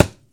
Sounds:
thump

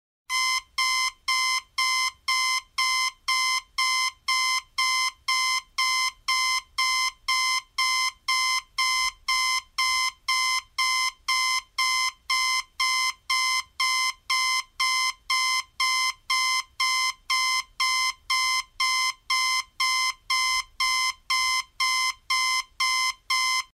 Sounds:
alarm

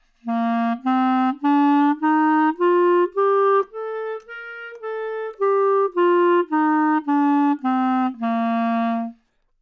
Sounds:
music, musical instrument, woodwind instrument

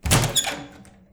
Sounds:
wood, squeak

